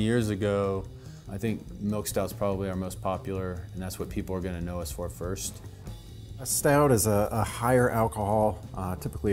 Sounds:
Music, Speech

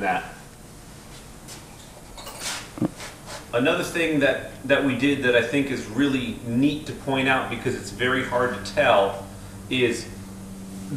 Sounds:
Speech

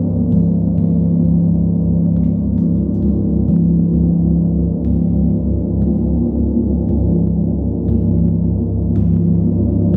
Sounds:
playing gong

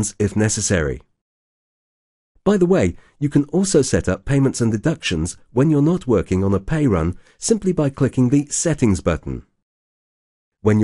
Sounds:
Speech

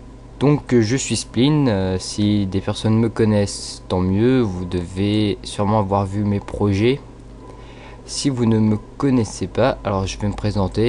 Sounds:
Speech

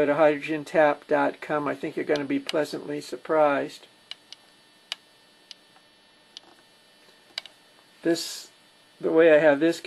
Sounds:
Speech

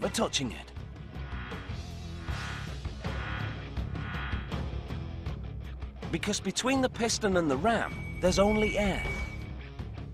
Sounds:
running electric fan

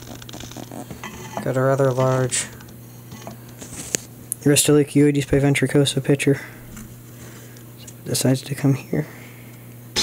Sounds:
Speech

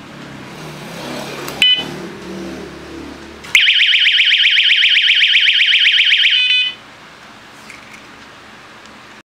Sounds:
Vehicle

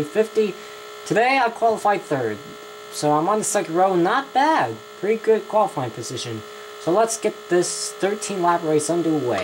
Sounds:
Speech, inside a small room

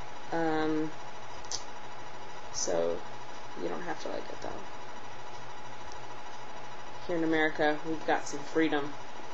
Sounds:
Speech, inside a small room

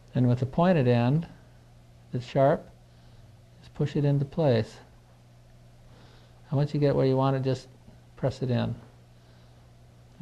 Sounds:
Speech

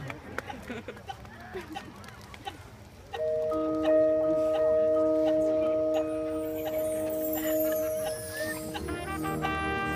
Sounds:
Music, Speech

